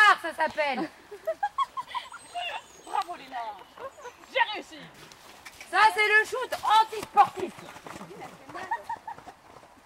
Children are talking and laughing